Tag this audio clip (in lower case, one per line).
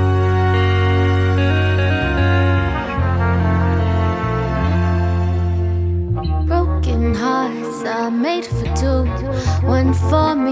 background music